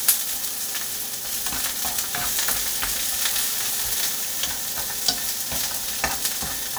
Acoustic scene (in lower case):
kitchen